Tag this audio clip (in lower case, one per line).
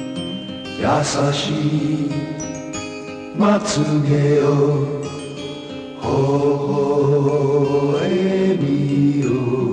music